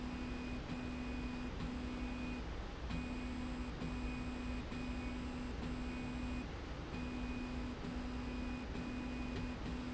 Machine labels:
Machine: slide rail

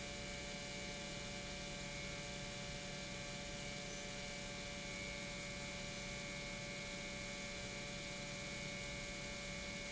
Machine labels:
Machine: pump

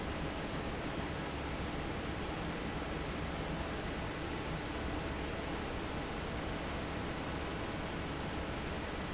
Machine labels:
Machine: fan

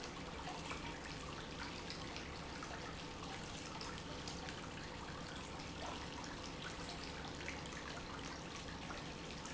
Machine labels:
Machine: pump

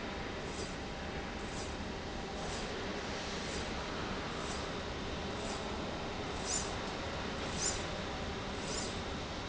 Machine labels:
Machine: slide rail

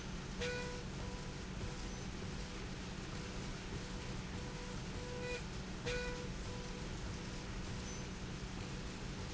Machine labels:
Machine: slide rail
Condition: normal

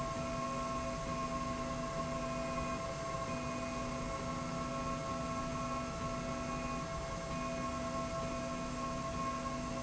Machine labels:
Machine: slide rail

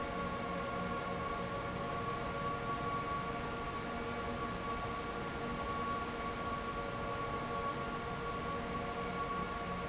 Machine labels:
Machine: fan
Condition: abnormal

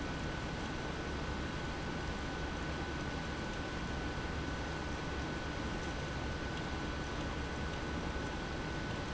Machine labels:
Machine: pump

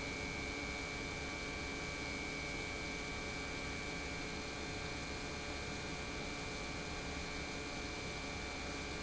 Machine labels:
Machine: pump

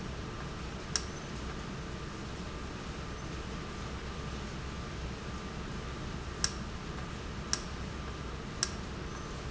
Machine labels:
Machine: valve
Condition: normal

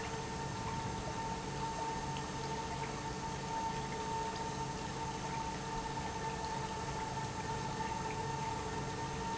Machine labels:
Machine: pump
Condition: normal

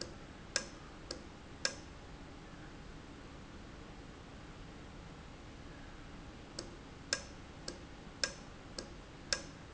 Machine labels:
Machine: valve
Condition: normal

